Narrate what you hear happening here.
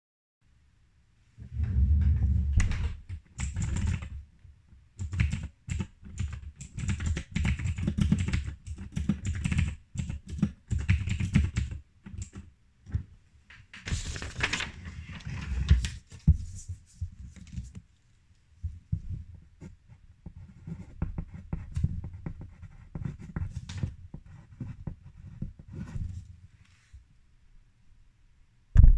I moved to the desk with my desk chair, then started typing on the keyboard. After that i picked up a sheet of paper and started taking notes